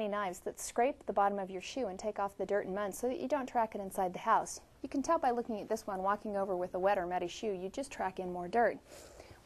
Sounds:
Speech

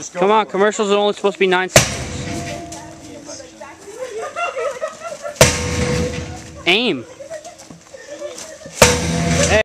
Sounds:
Speech

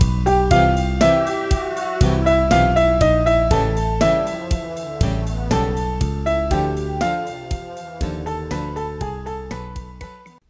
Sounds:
Piano, Keyboard (musical), Music

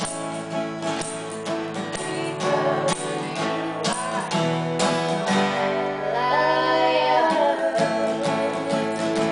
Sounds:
Music, Musical instrument, Plucked string instrument, Singing, Guitar

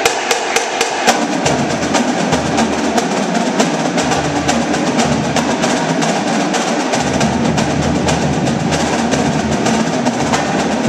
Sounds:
Music

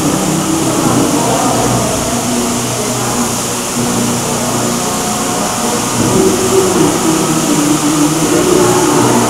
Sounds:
Music

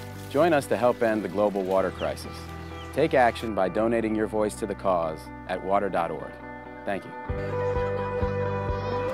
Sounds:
Speech, Music

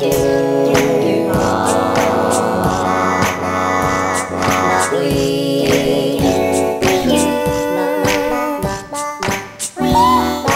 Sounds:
Music, Country

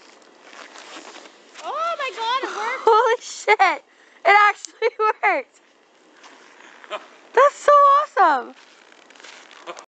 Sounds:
Speech

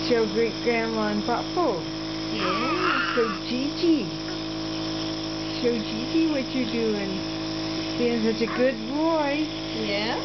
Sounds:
Speech

